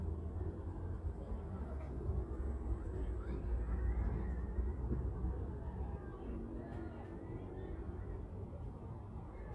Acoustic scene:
residential area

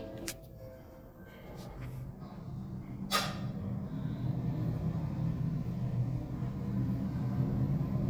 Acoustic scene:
elevator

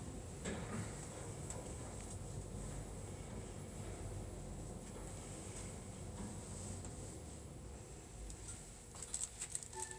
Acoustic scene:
elevator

